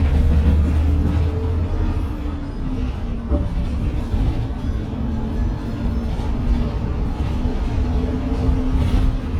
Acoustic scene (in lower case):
bus